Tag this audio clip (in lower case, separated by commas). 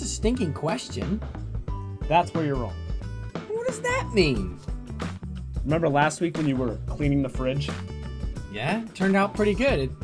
music, speech